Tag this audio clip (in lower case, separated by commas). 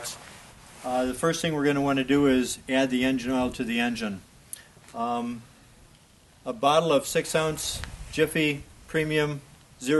speech